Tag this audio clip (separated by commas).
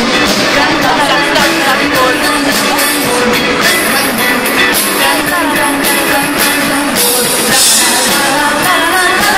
Music, Independent music